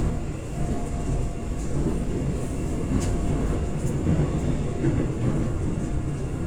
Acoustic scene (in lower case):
subway train